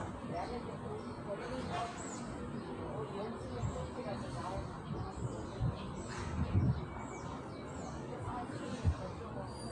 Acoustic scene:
park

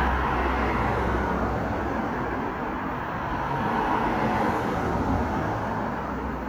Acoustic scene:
street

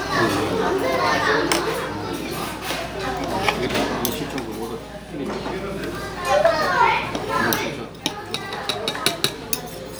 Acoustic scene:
restaurant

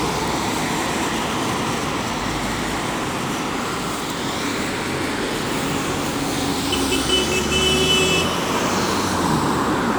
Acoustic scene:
street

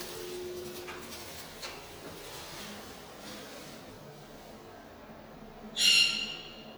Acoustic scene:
elevator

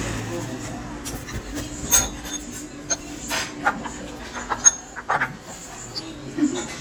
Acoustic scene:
restaurant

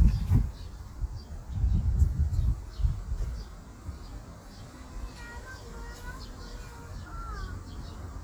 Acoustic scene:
park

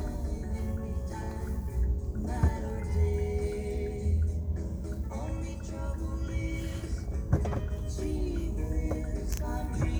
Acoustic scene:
car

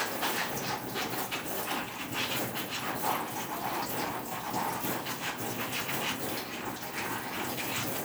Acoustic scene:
kitchen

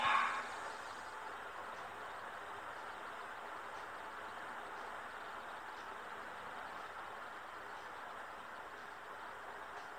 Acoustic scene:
elevator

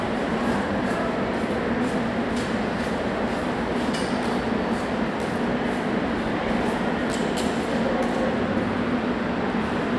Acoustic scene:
subway station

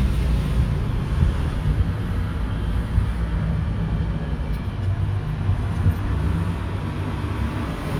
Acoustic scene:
street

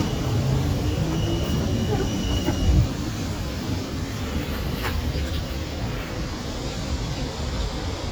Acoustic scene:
residential area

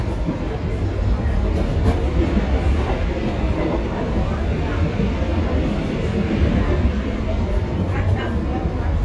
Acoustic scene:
subway train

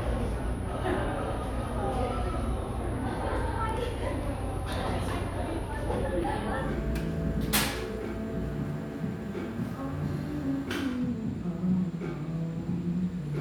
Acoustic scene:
cafe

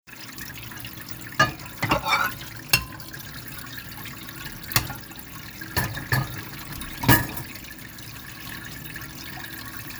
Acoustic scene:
kitchen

